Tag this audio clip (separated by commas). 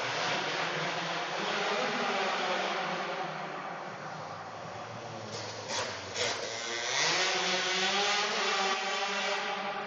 vroom, Vehicle, revving